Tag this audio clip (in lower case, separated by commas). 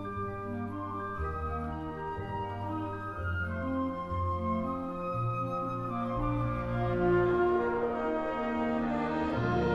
music